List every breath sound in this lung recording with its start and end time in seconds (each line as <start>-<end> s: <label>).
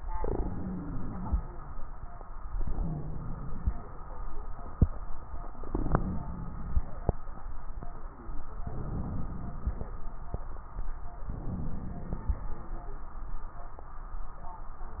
0.14-1.47 s: inhalation
0.14-1.47 s: wheeze
2.51-3.84 s: inhalation
5.65-6.97 s: inhalation
8.66-9.94 s: inhalation
11.34-12.62 s: inhalation